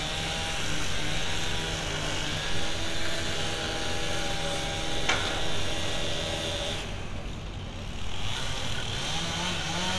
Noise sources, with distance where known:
chainsaw, near

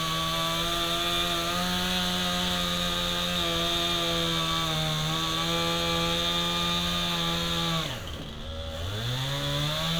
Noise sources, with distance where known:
chainsaw, near

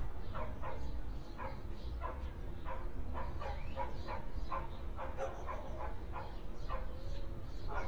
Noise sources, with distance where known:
dog barking or whining, far

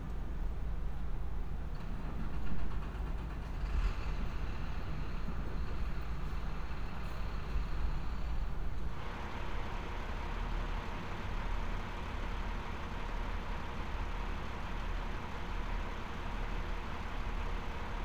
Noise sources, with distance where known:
large-sounding engine

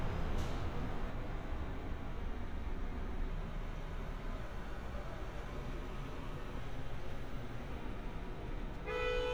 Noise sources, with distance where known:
car horn

